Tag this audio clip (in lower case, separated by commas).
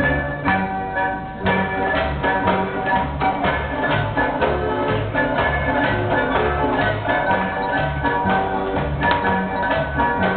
music